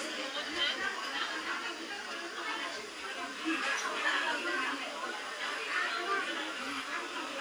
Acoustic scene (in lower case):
restaurant